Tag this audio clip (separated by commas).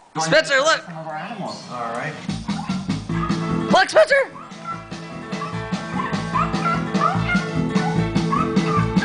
Dog, Music, Speech